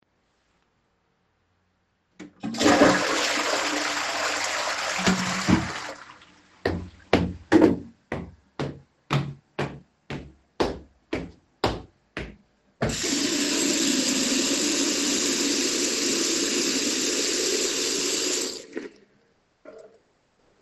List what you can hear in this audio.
toilet flushing, footsteps, running water